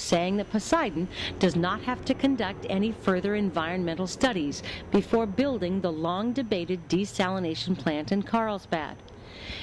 A woman speeches while an engine works